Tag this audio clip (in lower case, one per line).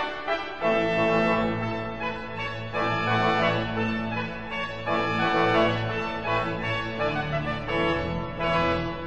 hammond organ
organ